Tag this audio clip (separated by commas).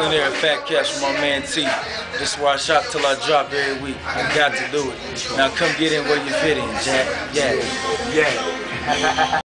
Speech